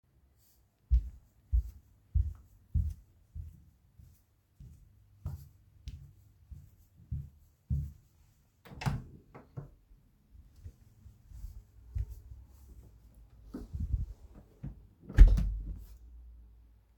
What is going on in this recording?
I walked down the hallway towards the door. When I reached the door, I opened it and then closed it again.